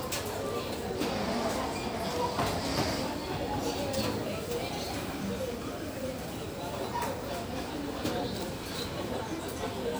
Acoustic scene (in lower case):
crowded indoor space